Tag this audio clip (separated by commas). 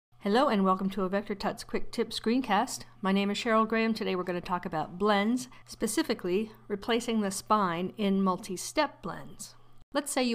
monologue